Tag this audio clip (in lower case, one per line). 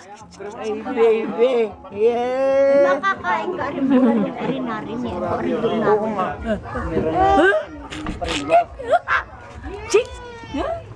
speech